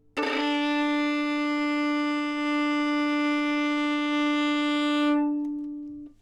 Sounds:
Music, Bowed string instrument, Musical instrument

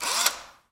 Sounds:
Tools, Engine, Drill, Power tool

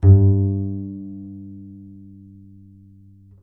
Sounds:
Bowed string instrument, Music, Musical instrument

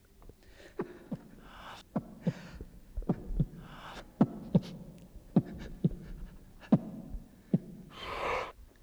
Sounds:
Breathing, Respiratory sounds

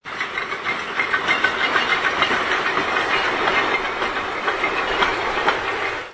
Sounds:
Train, Rail transport, Vehicle

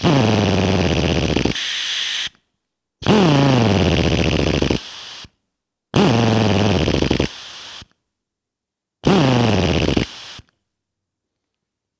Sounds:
Tools, Drill, Power tool

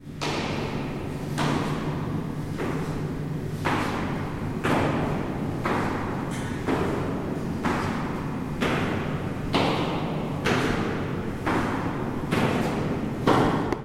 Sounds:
footsteps

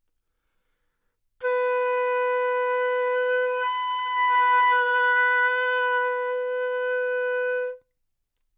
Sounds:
Wind instrument, Musical instrument, Music

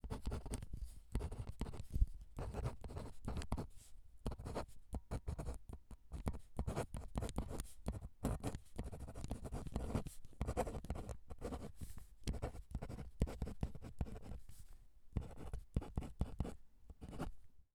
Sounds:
home sounds, Writing

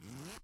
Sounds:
Zipper (clothing), home sounds

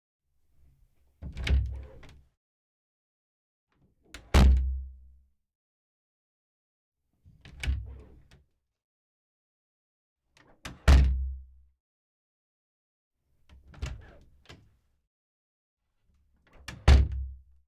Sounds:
Domestic sounds, Door, thud, Slam

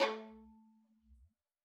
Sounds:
Musical instrument, Bowed string instrument, Music

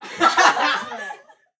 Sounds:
Laughter, Human voice

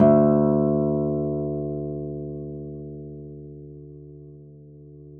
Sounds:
Music, Musical instrument, Acoustic guitar, Guitar, Plucked string instrument

